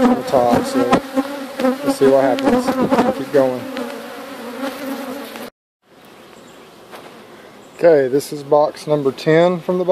Bee buzzing with speech